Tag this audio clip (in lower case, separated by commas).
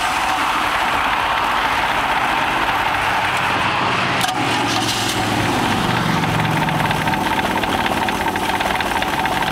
medium engine (mid frequency), idling, engine